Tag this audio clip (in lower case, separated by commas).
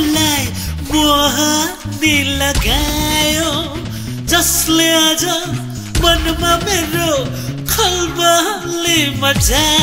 music, guitar, musical instrument, music of asia, singing